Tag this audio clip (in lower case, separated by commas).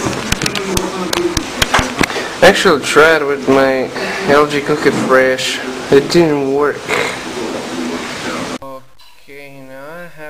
speech